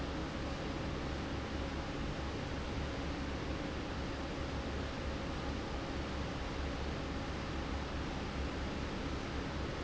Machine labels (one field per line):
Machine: fan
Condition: normal